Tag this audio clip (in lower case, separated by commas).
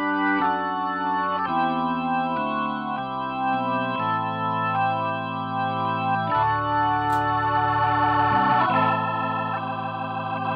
music